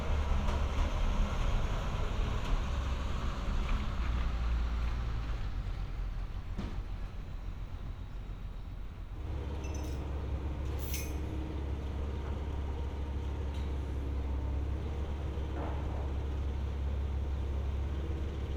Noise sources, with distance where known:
large-sounding engine

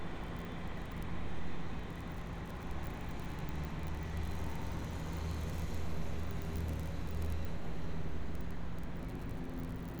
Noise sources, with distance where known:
medium-sounding engine, far

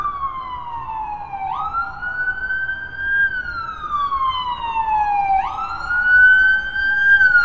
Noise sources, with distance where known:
siren, near

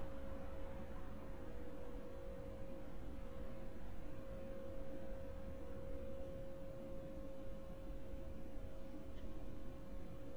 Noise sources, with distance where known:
background noise

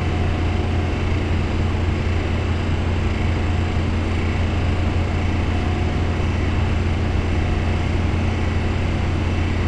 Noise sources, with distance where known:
jackhammer

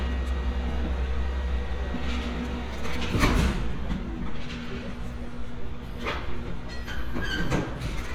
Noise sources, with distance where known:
non-machinery impact, near

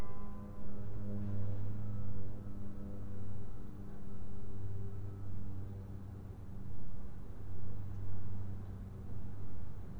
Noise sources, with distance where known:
unidentified alert signal, far

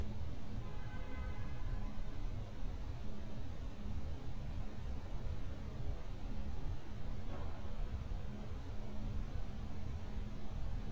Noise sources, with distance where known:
car horn

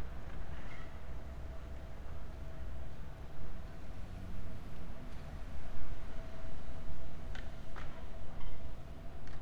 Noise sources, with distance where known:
background noise

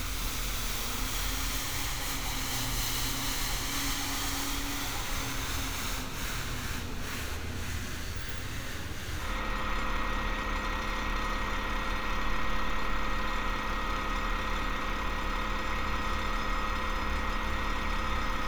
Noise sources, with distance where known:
unidentified impact machinery

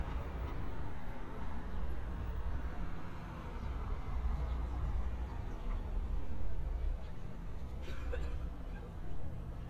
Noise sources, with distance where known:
engine of unclear size, far
unidentified human voice

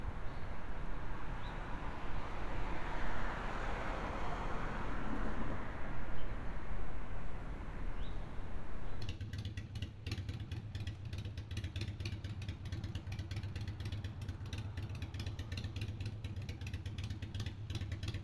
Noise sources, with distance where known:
medium-sounding engine, near

